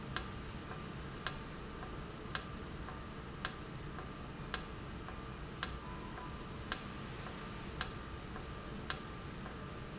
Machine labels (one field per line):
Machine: valve